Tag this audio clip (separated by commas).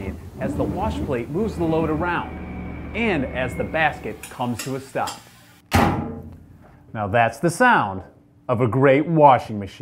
Speech